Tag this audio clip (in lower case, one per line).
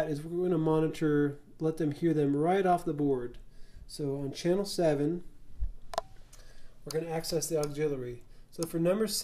speech